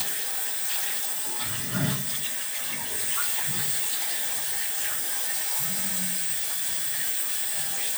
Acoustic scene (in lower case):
restroom